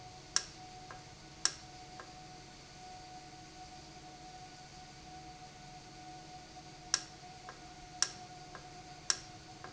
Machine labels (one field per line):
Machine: valve